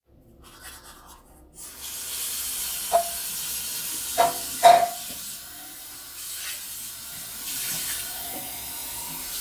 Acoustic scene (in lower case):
restroom